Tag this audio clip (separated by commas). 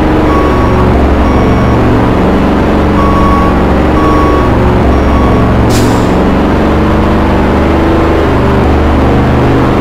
Reversing beeps